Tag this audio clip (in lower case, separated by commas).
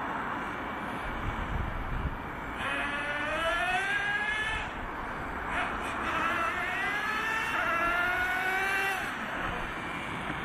revving, vehicle